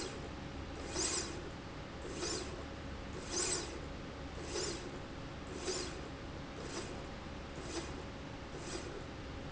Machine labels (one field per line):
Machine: slide rail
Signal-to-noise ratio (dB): 0 dB